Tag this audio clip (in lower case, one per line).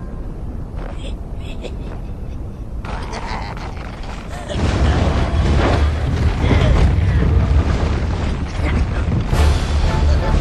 music